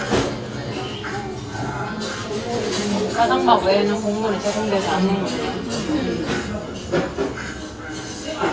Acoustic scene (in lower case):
restaurant